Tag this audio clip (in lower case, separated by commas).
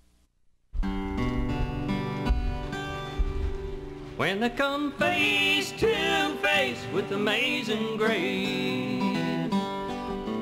music, gospel music